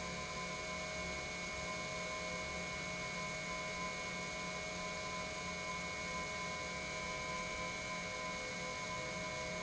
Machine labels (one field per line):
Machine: pump